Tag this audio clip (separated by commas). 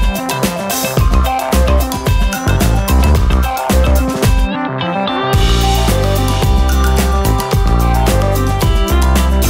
Music